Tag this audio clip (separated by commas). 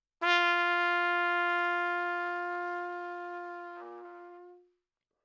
Trumpet, Musical instrument, Music, Brass instrument